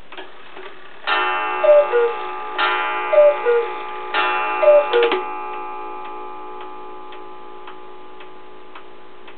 Clicking then ticking and coo coos of a clock